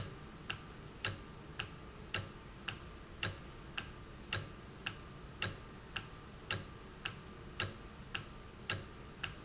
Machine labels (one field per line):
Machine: valve